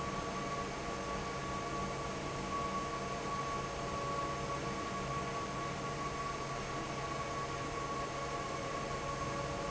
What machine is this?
fan